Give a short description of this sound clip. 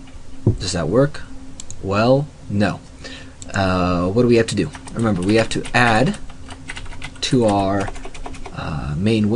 A man speaks followed by clicking and typing